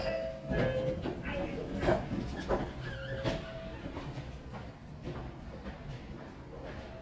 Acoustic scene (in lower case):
elevator